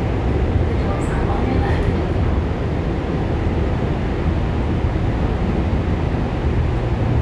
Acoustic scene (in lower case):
subway train